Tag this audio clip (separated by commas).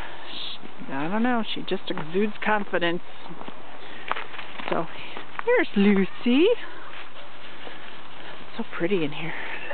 Bird, Speech, Animal